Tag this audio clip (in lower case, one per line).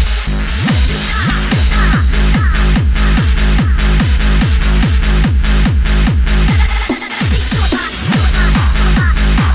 music